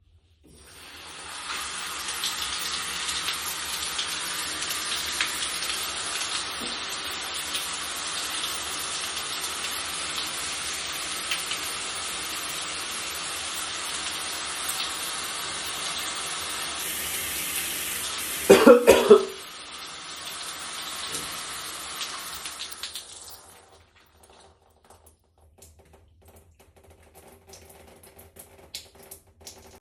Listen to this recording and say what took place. The recording was made in a bathroom with the phone placed statically on the shower shelf. The water was turned on and ran for most of the recording. Towards the end a cough occurred while the water was still running. The water was then turned off and the remaining seconds captured water drops hitting the floor.